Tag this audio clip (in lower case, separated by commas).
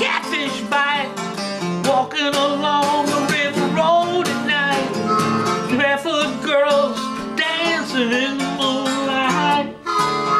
wind instrument, harmonica